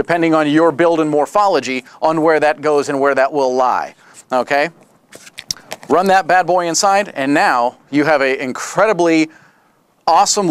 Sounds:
Speech

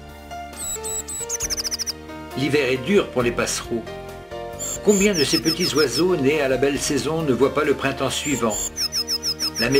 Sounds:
black capped chickadee calling

